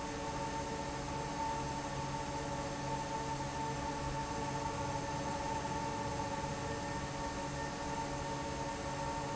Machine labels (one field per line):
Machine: fan